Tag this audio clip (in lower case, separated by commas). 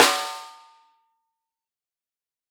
musical instrument, snare drum, drum, music, percussion